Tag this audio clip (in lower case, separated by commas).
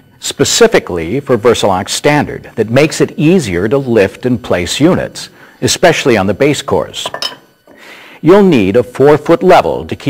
speech